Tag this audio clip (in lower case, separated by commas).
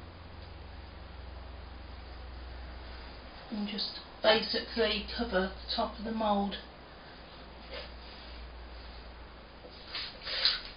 speech